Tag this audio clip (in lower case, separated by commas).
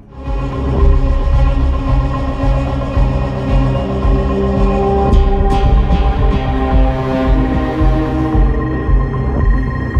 music